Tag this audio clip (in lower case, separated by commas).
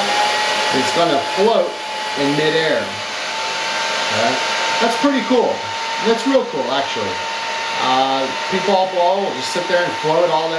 speech